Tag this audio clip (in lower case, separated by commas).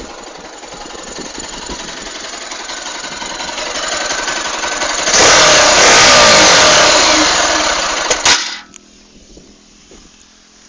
engine, motor vehicle (road), motorcycle, vehicle